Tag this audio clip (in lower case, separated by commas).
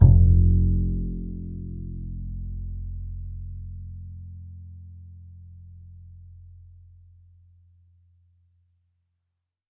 music, musical instrument, bowed string instrument